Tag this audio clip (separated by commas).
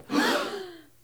Gasp, Human voice, Breathing, Respiratory sounds